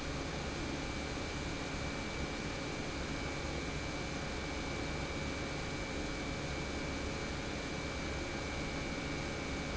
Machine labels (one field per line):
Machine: pump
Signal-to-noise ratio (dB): -6 dB